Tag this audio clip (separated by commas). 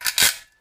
Tools